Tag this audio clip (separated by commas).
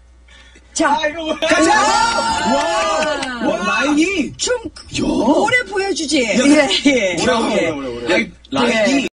Speech